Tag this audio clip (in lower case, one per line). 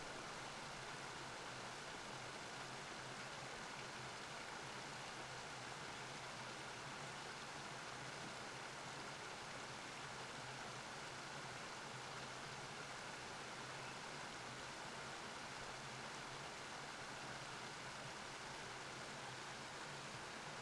water
stream